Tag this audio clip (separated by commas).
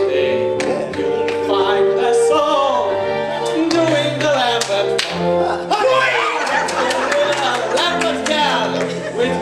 Music, footsteps